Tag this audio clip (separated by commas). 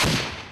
Explosion